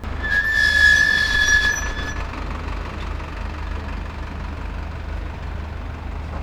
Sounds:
engine
idling
squeak

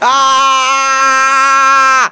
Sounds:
human voice
screaming

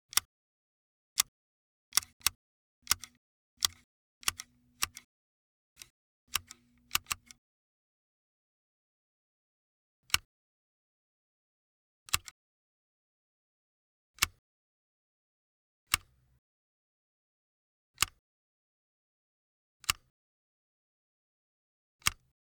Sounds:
domestic sounds
scissors

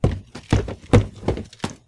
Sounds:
walk

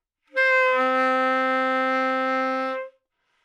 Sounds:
musical instrument
music
woodwind instrument

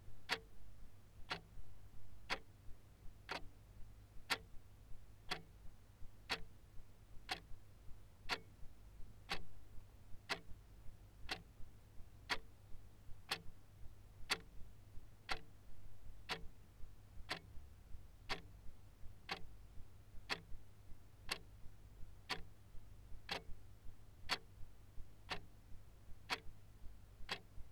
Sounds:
mechanisms
clock

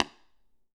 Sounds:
tap

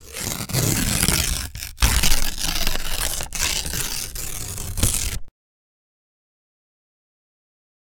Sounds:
tearing

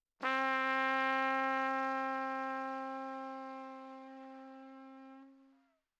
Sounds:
musical instrument
trumpet
brass instrument
music

